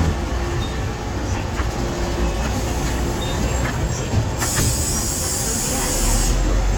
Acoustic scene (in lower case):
street